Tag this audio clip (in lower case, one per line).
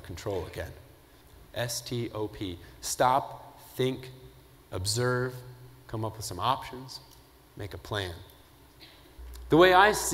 speech
male speech
narration